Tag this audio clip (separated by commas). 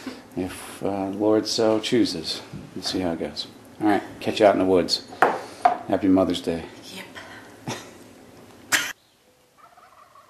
Speech